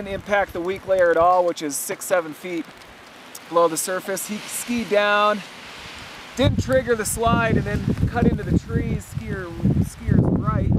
Man speaking, wind blowing hard through trees and snow